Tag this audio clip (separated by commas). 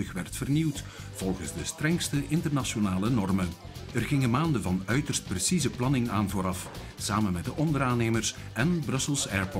Speech, Music